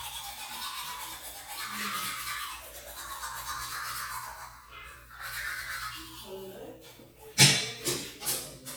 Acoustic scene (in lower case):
restroom